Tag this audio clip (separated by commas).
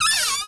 Domestic sounds, Cupboard open or close